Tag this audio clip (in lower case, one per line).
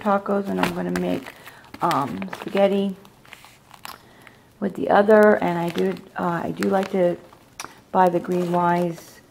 crumpling
speech